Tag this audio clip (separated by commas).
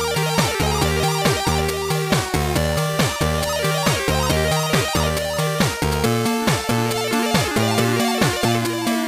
Blues, Music